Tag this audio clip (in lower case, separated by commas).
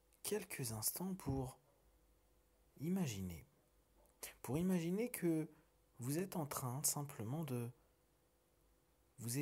speech